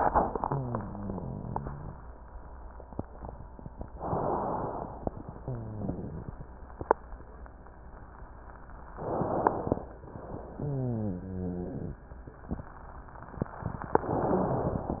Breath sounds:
0.36-2.07 s: exhalation
0.36-2.07 s: wheeze
3.96-4.97 s: inhalation
3.96-4.97 s: crackles
5.37-6.45 s: wheeze
8.97-9.87 s: inhalation
8.97-9.87 s: crackles
10.61-11.88 s: wheeze

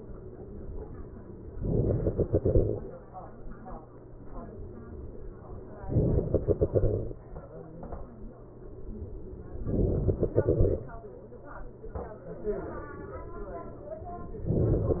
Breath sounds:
1.59-2.89 s: inhalation
5.89-7.19 s: inhalation
9.61-10.91 s: inhalation

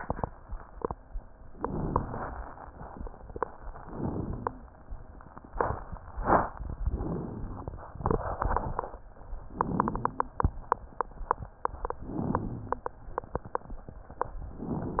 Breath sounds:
1.50-2.32 s: inhalation
3.81-4.63 s: inhalation
6.85-7.80 s: inhalation
9.49-10.30 s: inhalation
12.03-12.85 s: inhalation

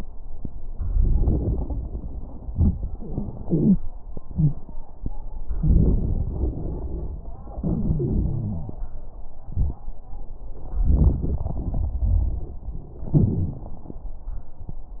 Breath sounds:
0.92-2.44 s: inhalation
0.92-2.44 s: crackles
2.53-3.88 s: exhalation
3.45-3.83 s: wheeze
4.26-4.64 s: wheeze
5.55-7.31 s: inhalation
5.55-7.31 s: crackles
7.62-8.79 s: exhalation
7.62-8.79 s: wheeze
10.78-12.55 s: inhalation
10.78-12.55 s: crackles
13.05-13.86 s: exhalation
13.05-13.86 s: crackles

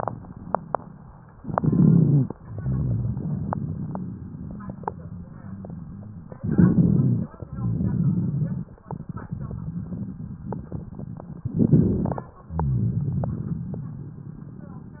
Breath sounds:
1.41-2.31 s: wheeze
1.42-2.29 s: inhalation
2.47-5.26 s: exhalation
6.40-7.30 s: wheeze
6.44-7.32 s: inhalation
7.42-8.67 s: wheeze
7.44-8.80 s: exhalation
11.47-12.44 s: inhalation
11.47-12.44 s: crackles

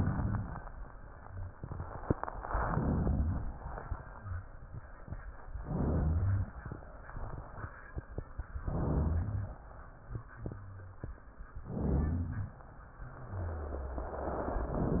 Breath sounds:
2.47-3.55 s: inhalation
2.51-3.40 s: rhonchi
3.56-4.33 s: exhalation
5.55-6.73 s: inhalation
5.65-6.47 s: rhonchi
8.63-9.49 s: rhonchi
8.63-9.66 s: inhalation
9.93-11.17 s: exhalation
10.06-10.23 s: rhonchi
10.33-10.99 s: rhonchi
11.61-12.82 s: inhalation
11.76-12.48 s: rhonchi

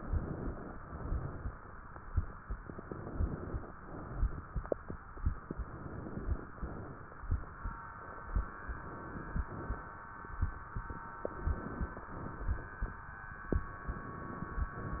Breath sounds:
0.00-0.72 s: inhalation
0.72-1.63 s: exhalation
2.75-3.66 s: inhalation
3.76-4.67 s: exhalation
5.35-6.47 s: inhalation
6.47-7.26 s: exhalation
8.14-9.45 s: inhalation
9.45-10.21 s: exhalation
11.20-12.11 s: inhalation
12.11-13.05 s: exhalation
13.65-14.72 s: inhalation
14.72-15.00 s: exhalation

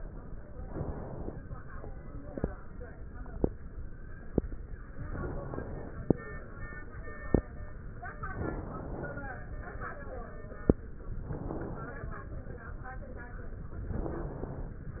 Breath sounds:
0.57-1.39 s: inhalation
5.05-6.05 s: inhalation
8.33-9.34 s: inhalation
11.14-12.14 s: inhalation
13.91-14.91 s: inhalation

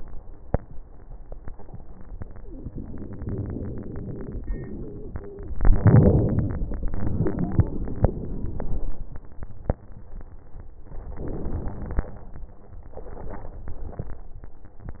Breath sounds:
5.60-6.55 s: inhalation
5.60-6.55 s: crackles
6.82-8.86 s: exhalation
6.82-8.86 s: wheeze
11.14-12.18 s: wheeze
11.16-12.19 s: inhalation
12.97-14.09 s: crackles
12.98-14.09 s: exhalation

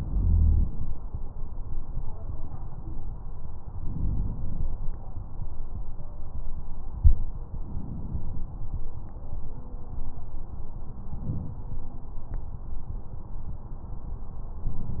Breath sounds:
0.00-0.96 s: inhalation
3.77-4.65 s: inhalation
7.65-8.54 s: inhalation
11.13-11.84 s: inhalation
14.64-15.00 s: inhalation

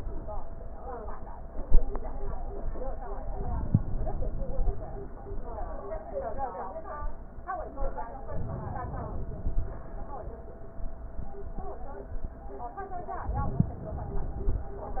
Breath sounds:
3.35-5.02 s: inhalation
8.34-9.88 s: inhalation

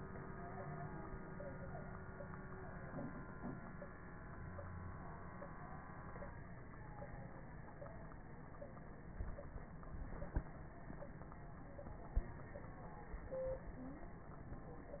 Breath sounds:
4.28-4.95 s: wheeze
13.78-14.29 s: stridor

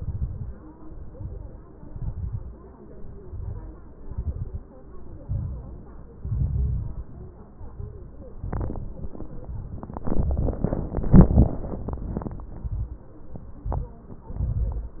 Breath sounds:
0.00-0.53 s: exhalation
0.00-0.53 s: crackles
0.95-1.69 s: inhalation
0.95-1.69 s: crackles
1.80-2.54 s: exhalation
1.80-2.54 s: crackles
2.96-3.70 s: inhalation
2.96-3.70 s: crackles
4.01-4.65 s: exhalation
4.01-4.65 s: crackles
5.23-5.87 s: inhalation
5.23-5.87 s: crackles
6.18-7.12 s: exhalation
6.18-7.12 s: crackles
7.54-8.24 s: inhalation
7.54-8.24 s: crackles
8.32-9.02 s: exhalation
8.32-9.02 s: crackles
12.50-13.12 s: inhalation
12.50-13.12 s: crackles
13.45-14.07 s: exhalation
13.45-14.07 s: crackles
14.39-15.00 s: inhalation
14.39-15.00 s: crackles

